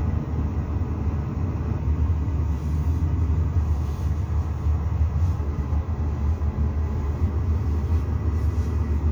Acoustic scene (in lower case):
car